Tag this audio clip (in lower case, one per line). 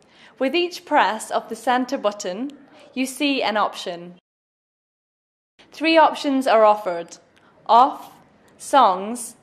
speech